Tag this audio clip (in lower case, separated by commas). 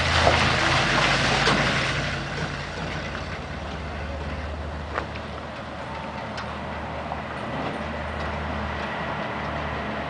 vehicle, truck